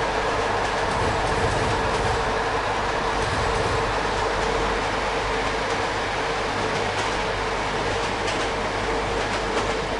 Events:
[0.00, 9.95] train
[0.00, 9.95] video game sound
[0.49, 2.08] clickety-clack
[5.37, 5.78] clickety-clack
[6.66, 7.11] clickety-clack
[7.93, 8.58] clickety-clack
[9.16, 9.78] clickety-clack

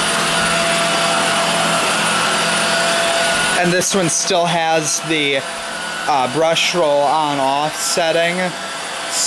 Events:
[0.00, 9.25] vacuum cleaner
[3.50, 5.38] male speech
[6.04, 8.49] male speech

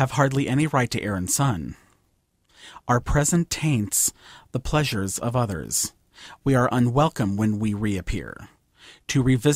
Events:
[0.00, 1.73] man speaking
[0.00, 9.55] background noise
[1.65, 1.95] breathing
[1.86, 1.96] clicking
[2.44, 2.82] breathing
[2.82, 4.08] man speaking
[4.12, 4.46] breathing
[4.48, 5.92] man speaking
[6.10, 6.37] breathing
[6.43, 8.58] man speaking
[8.71, 9.00] breathing
[9.06, 9.55] man speaking

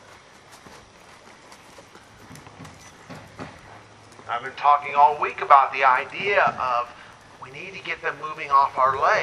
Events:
[0.00, 9.22] background noise
[0.50, 4.22] clip-clop
[2.76, 2.90] bleep

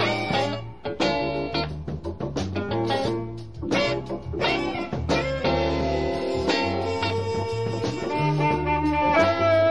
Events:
[0.01, 9.70] music

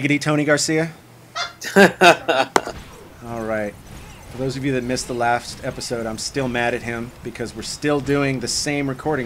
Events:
[0.00, 0.88] man speaking
[0.00, 9.25] video game sound
[1.30, 1.56] brief tone
[1.63, 2.73] laughter
[2.08, 2.39] human voice
[2.49, 2.59] tick
[2.62, 9.25] sound effect
[3.17, 3.73] man speaking
[3.93, 4.25] human voice
[4.33, 5.46] man speaking
[5.61, 7.09] man speaking
[5.69, 5.95] human voice
[7.22, 9.25] man speaking

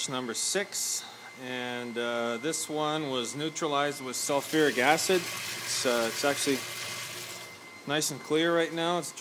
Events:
[0.00, 1.02] man speaking
[0.00, 9.20] mechanisms
[1.38, 3.50] man speaking
[3.58, 5.21] man speaking
[4.45, 7.69] pour
[5.68, 6.12] man speaking
[6.19, 6.60] man speaking
[7.88, 8.21] man speaking
[8.30, 9.20] man speaking

